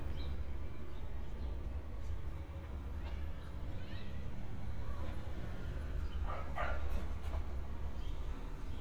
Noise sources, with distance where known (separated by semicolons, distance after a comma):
unidentified human voice, far; dog barking or whining, far